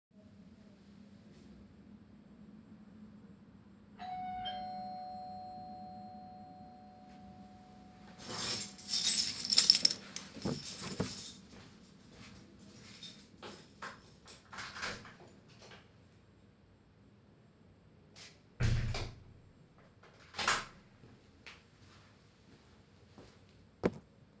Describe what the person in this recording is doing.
Someone rang the bell, I picked up my keys and left to open the main door.